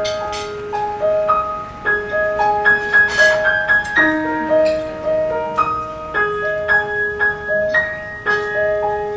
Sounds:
music, tools

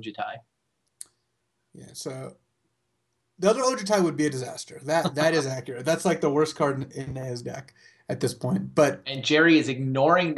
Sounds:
speech, inside a small room

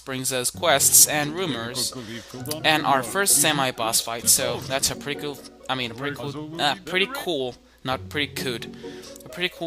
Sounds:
speech, music

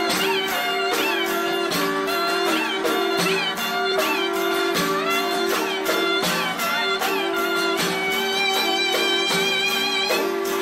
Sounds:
musical instrument, music

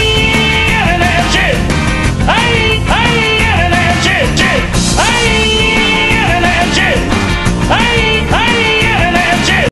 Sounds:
music

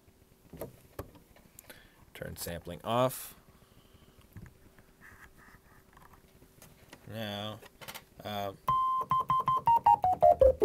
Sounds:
speech, electric piano, music, musical instrument, keyboard (musical), piano, synthesizer

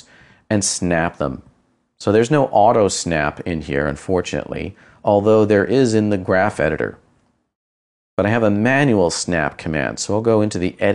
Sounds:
speech

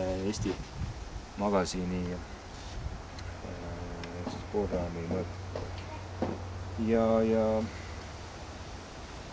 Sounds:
speech

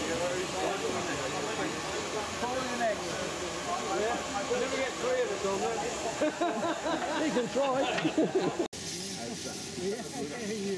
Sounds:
speech

